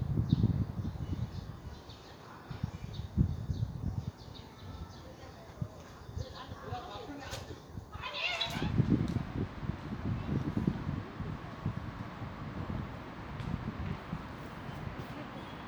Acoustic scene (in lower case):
residential area